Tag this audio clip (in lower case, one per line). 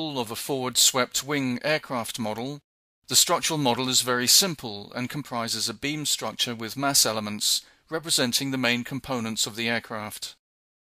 speech